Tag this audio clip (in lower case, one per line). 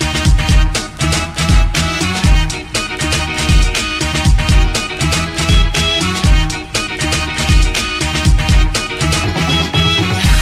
music